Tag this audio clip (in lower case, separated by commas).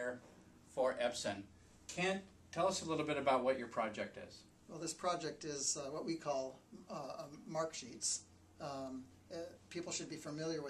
speech